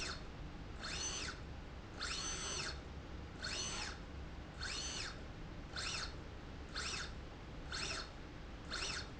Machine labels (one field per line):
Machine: slide rail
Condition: normal